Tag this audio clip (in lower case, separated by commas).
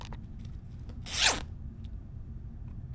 home sounds, zipper (clothing)